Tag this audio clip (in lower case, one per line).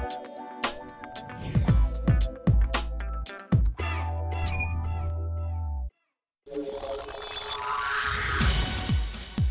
music